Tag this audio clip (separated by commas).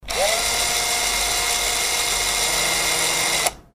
Power tool, Drill, Tools